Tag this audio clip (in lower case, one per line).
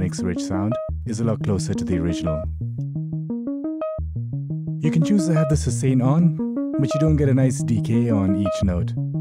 musical instrument
synthesizer
music